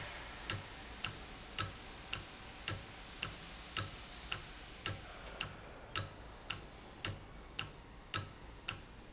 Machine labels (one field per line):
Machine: valve